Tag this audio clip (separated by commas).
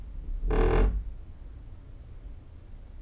Squeak